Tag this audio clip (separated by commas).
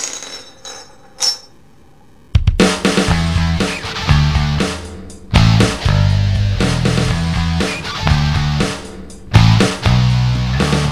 Music